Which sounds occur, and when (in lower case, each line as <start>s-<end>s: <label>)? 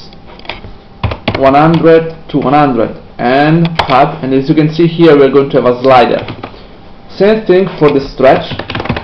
0.0s-9.0s: mechanisms
0.1s-0.2s: tick
0.4s-0.6s: clicking
0.6s-0.7s: tap
1.0s-1.1s: computer keyboard
1.2s-1.4s: computer keyboard
1.3s-2.1s: man speaking
1.7s-1.8s: tick
2.3s-2.9s: man speaking
2.3s-2.5s: tick
3.2s-3.6s: man speaking
3.6s-3.8s: clicking
3.8s-6.2s: man speaking
5.8s-5.9s: tick
6.1s-6.5s: generic impact sounds
7.1s-8.5s: man speaking
7.8s-7.9s: clicking
8.5s-9.0s: computer keyboard